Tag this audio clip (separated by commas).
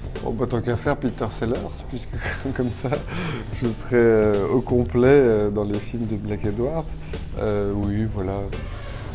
Music, Speech